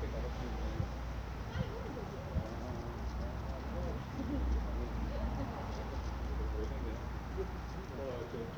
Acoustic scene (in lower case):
residential area